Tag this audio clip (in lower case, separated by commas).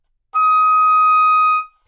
music, woodwind instrument, musical instrument